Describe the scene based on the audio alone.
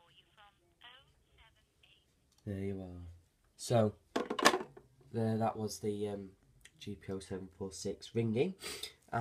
An electronic female voice occurs, then a clatter, and an adult male speaks